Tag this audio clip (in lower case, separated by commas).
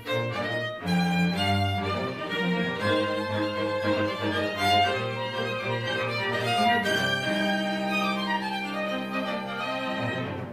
violin, musical instrument, music